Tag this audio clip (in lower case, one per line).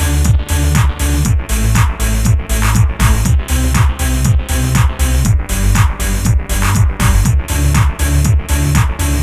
electronic music
music
techno